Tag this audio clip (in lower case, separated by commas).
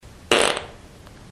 fart